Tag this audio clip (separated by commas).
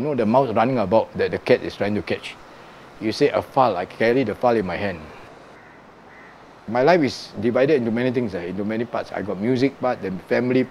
Speech